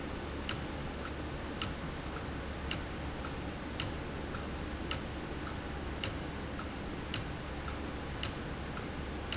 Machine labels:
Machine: valve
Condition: abnormal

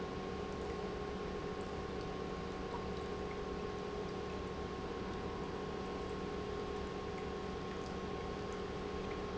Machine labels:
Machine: pump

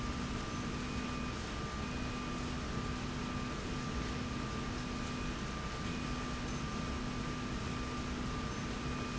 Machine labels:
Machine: slide rail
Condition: normal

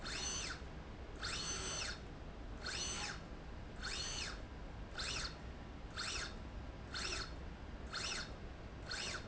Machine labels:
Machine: slide rail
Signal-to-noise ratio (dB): 6 dB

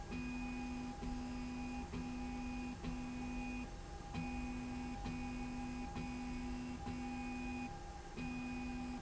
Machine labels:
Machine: slide rail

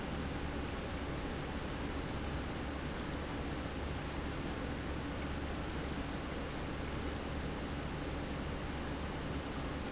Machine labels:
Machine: pump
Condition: normal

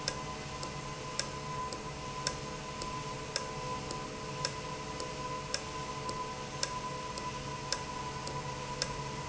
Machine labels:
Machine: valve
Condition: normal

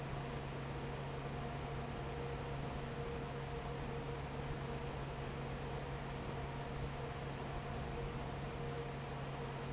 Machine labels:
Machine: fan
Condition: normal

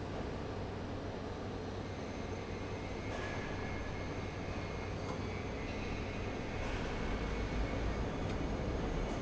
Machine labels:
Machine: fan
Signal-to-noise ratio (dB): -6 dB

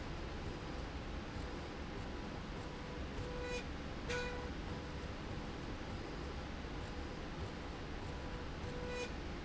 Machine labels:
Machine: slide rail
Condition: normal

